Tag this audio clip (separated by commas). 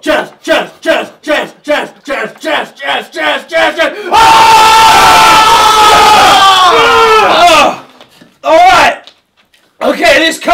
Crowd